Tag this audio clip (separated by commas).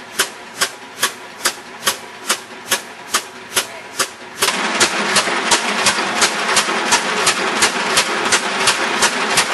Speech, Engine